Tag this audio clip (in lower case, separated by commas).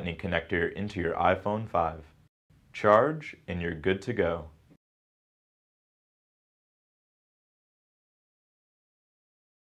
speech